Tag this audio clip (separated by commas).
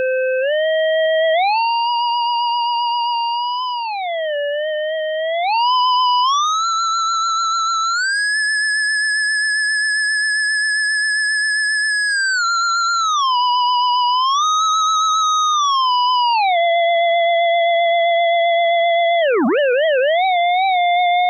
Music, Musical instrument